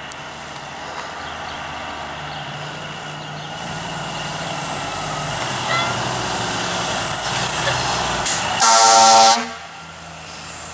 Lulling roar of a truck, and then a loud honk